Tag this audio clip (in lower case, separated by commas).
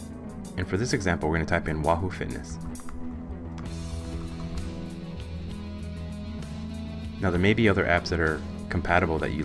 speech, music